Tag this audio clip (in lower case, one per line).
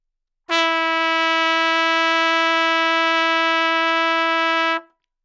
trumpet
brass instrument
music
musical instrument